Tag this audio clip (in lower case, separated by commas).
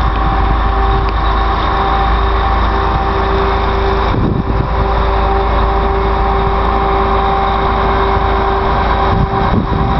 vehicle